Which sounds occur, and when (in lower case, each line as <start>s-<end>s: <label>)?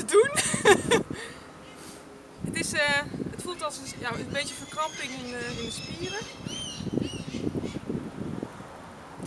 0.0s-0.4s: female speech
0.0s-9.2s: conversation
0.0s-9.2s: wind
0.2s-1.3s: wind noise (microphone)
0.3s-1.0s: laughter
1.1s-1.4s: breathing
1.6s-1.8s: human voice
1.7s-2.0s: surface contact
2.4s-3.4s: wind noise (microphone)
2.5s-3.0s: female speech
3.3s-6.2s: female speech
3.5s-4.0s: human voice
3.8s-4.7s: wind noise (microphone)
4.3s-7.4s: bird vocalization
4.9s-6.2s: wind noise (microphone)
6.3s-8.6s: wind noise (microphone)
7.6s-7.9s: bird vocalization
9.1s-9.2s: wind noise (microphone)